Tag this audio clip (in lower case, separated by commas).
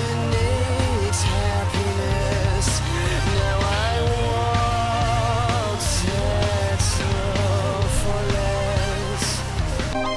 music